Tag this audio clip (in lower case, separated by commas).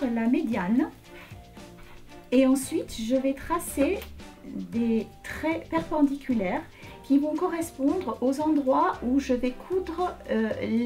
music, speech